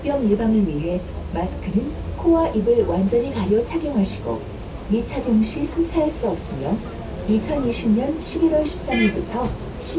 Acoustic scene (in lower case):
bus